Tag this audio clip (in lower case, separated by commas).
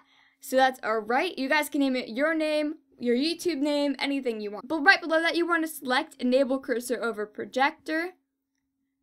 speech